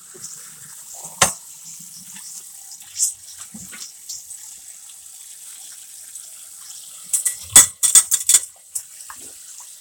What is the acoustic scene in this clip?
kitchen